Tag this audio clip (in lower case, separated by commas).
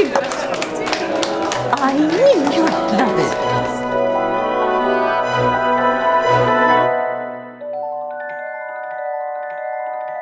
speech, music